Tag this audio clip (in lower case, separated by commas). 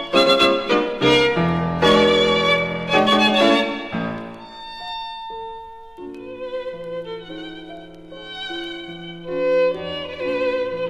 piano, keyboard (musical)